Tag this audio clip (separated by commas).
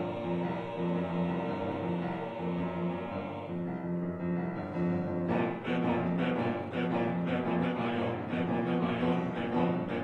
Choir, Music